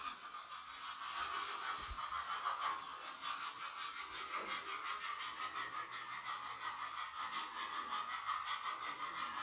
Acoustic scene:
restroom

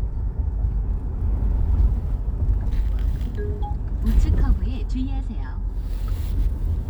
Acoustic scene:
car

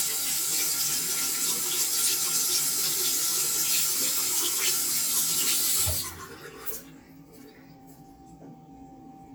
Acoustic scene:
restroom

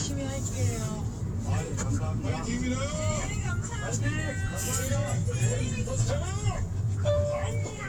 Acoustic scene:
car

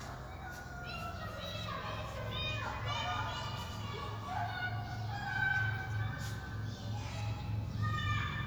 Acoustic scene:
park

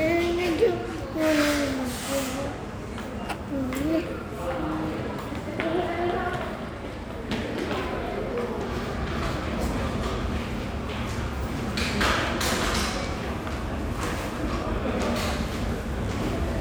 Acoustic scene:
subway station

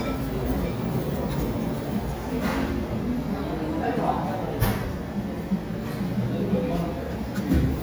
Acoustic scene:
restaurant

